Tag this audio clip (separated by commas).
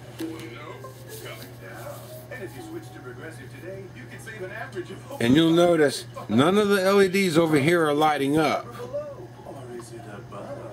Speech, Music